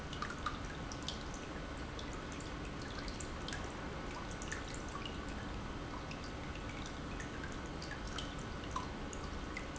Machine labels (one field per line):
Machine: pump